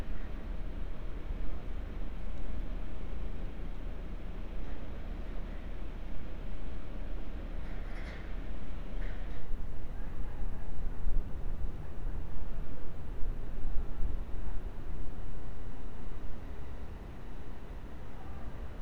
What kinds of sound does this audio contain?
background noise